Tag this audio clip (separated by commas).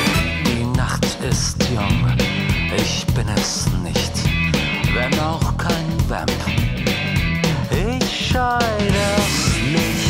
Music